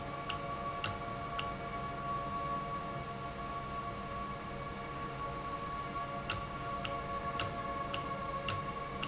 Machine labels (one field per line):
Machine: valve